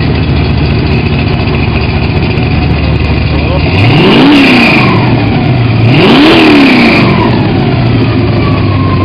Engine idling loudly with man speaking in background and then revving of engine